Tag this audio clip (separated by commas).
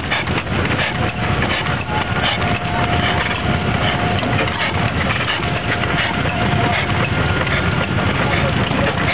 Medium engine (mid frequency), Engine, Speech